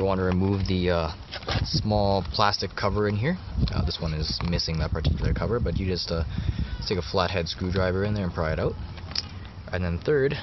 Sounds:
Speech

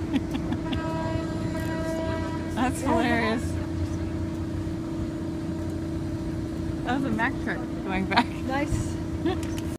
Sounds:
Speech, Vehicle, Boat

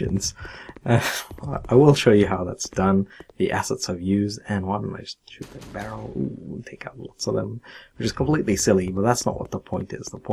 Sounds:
Speech

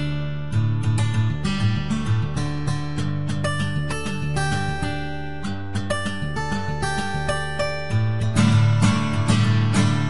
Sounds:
Guitar, Acoustic guitar, Music, Strum, Musical instrument, Plucked string instrument

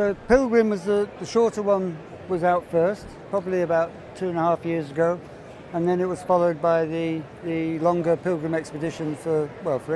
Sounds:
Speech

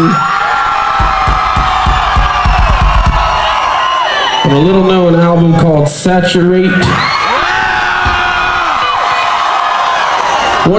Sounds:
Music, Crowd, Speech

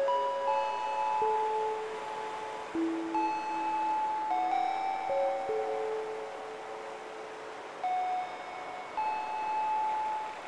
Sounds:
Music

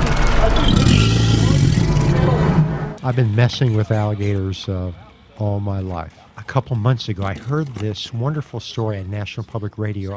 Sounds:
crocodiles hissing

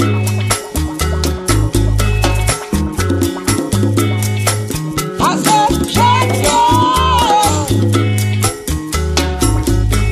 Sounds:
Salsa music, Music

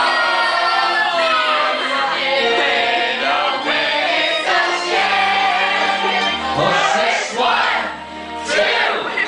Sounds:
Music, Male singing, Choir, Female singing

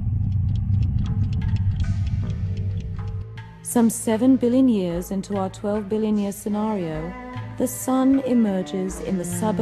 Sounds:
Speech, Music

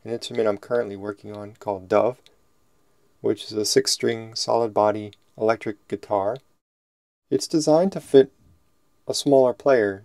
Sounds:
Speech

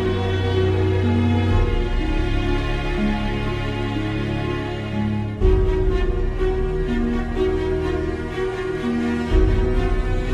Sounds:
Music

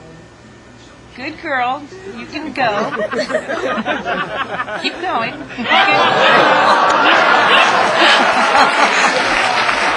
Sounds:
Speech

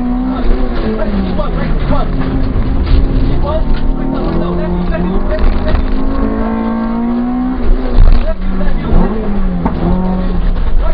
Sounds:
Speech

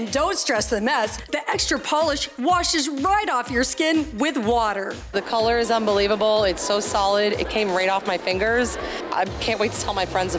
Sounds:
Spray, Music, Speech

